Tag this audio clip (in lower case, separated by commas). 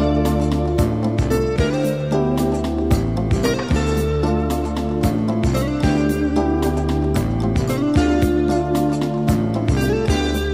music